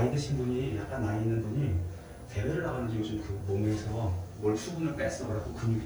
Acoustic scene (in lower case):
elevator